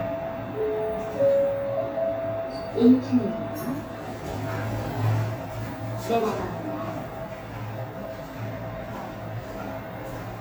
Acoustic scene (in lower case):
elevator